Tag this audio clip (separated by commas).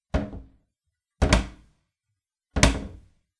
Cupboard open or close, Domestic sounds